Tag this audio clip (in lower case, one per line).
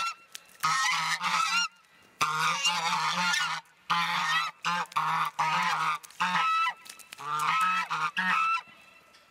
goose honking